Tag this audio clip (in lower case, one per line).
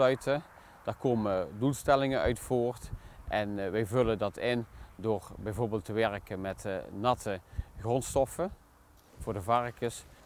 speech